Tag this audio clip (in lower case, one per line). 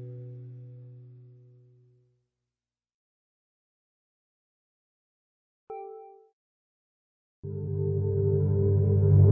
music